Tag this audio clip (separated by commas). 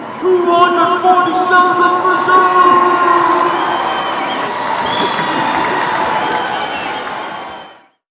Cheering, Applause, Human group actions, Human voice